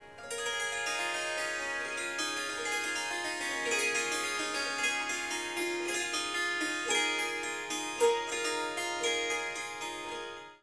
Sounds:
Harp, Music, Musical instrument

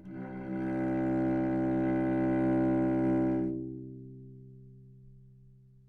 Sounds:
Bowed string instrument, Music, Musical instrument

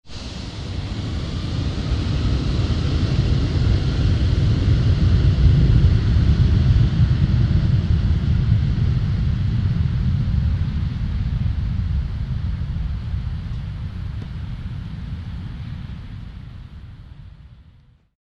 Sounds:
Fixed-wing aircraft, Aircraft, Vehicle

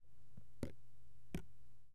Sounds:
Raindrop, Drip, Liquid, Water, Rain

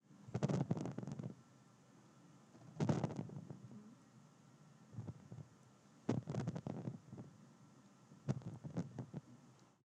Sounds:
Wind, Fire

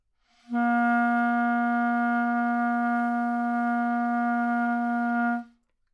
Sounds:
Musical instrument, Music, Wind instrument

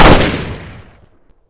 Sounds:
Gunshot, Explosion

